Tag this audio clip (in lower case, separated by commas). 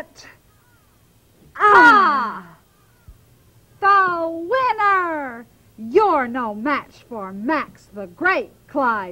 speech